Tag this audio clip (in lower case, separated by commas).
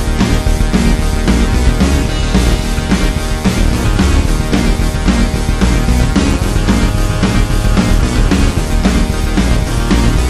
background music, theme music, music